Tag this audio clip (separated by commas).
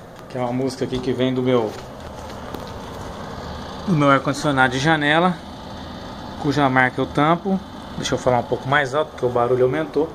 air conditioning noise